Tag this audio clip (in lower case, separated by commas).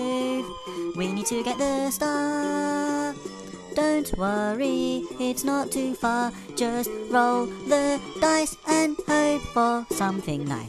soundtrack music, music